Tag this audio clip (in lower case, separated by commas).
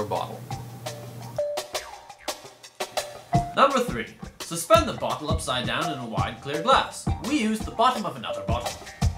speech, music